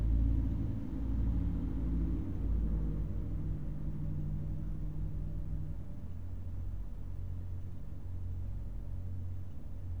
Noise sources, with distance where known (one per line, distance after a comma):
engine of unclear size, far